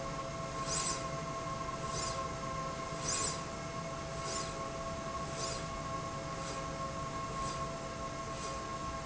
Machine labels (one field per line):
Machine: slide rail